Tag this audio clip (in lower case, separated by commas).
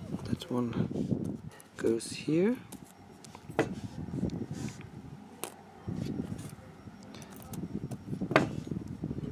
inside a small room, speech